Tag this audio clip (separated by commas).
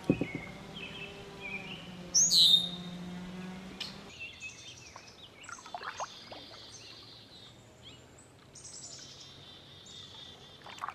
Environmental noise, Water vehicle, kayak rowing, Vehicle, kayak